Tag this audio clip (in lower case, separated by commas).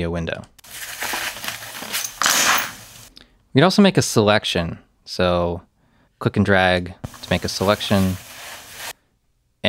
speech, inside a small room